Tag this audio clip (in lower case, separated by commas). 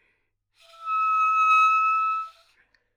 musical instrument, woodwind instrument, music